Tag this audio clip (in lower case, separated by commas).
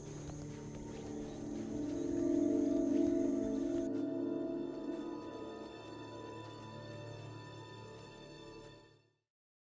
music